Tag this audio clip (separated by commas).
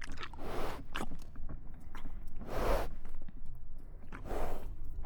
Animal, livestock